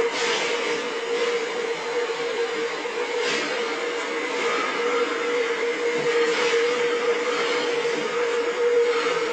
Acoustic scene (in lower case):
subway train